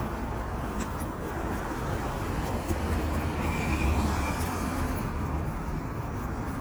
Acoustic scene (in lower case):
street